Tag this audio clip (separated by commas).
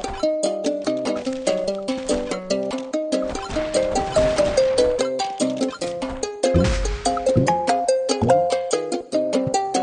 Music